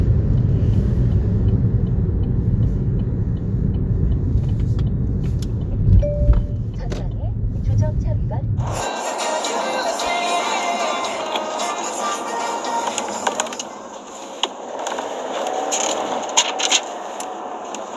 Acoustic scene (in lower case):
car